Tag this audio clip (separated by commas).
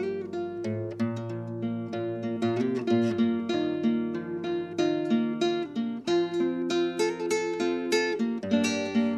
Musical instrument, Guitar, Music, Acoustic guitar, Electric guitar